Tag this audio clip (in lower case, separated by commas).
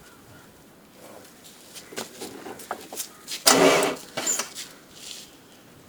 vehicle, car, motor vehicle (road)